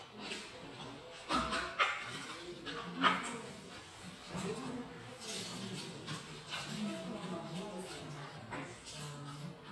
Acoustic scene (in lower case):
crowded indoor space